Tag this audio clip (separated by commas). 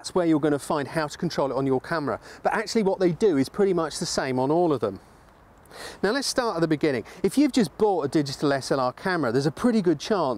Speech